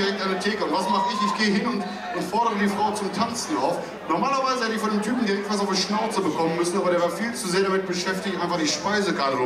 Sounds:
Speech

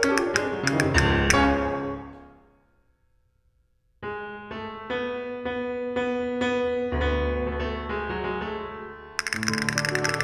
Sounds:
playing castanets

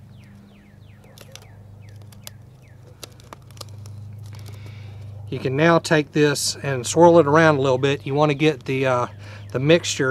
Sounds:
Speech

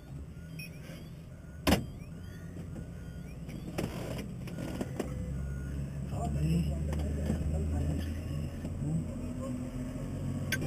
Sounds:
Speech

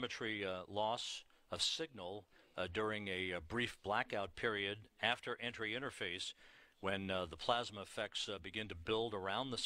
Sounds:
Speech

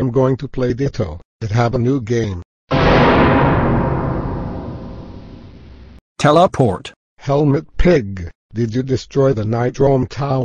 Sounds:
Speech

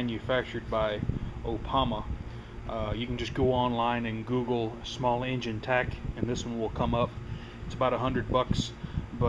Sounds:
Speech

